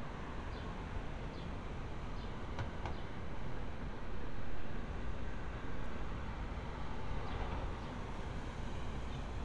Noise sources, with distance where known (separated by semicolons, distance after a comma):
background noise